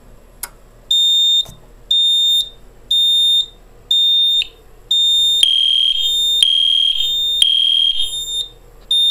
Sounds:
Fire alarm

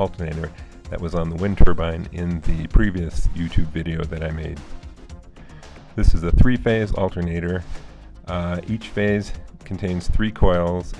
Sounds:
Speech, Music

